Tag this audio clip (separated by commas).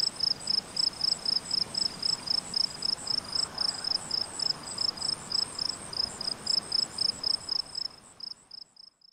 Insect, outside, rural or natural